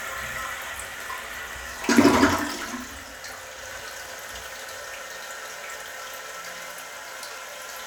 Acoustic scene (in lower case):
restroom